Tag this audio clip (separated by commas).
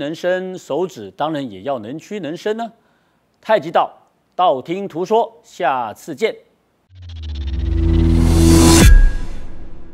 Speech, Music